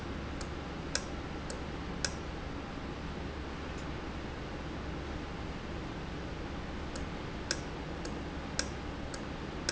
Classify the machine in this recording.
valve